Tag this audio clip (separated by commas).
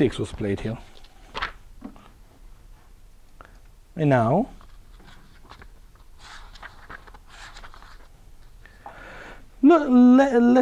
Speech